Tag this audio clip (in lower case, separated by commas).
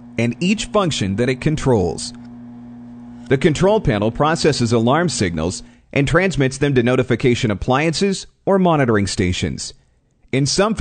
speech